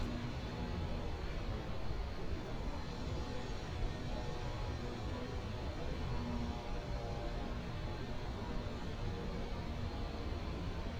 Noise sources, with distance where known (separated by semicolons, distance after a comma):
small or medium rotating saw, far